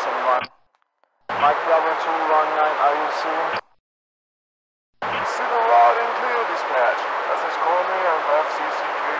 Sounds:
police radio chatter

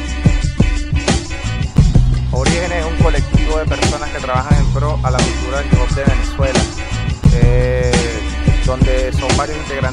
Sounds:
music
speech

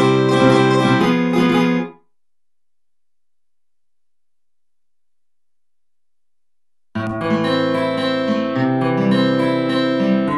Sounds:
plucked string instrument
acoustic guitar
strum
guitar
music
musical instrument

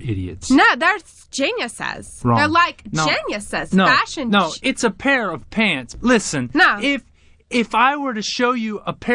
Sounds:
speech synthesizer
speech

